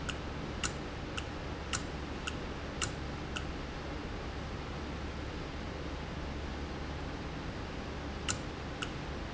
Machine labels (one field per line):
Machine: valve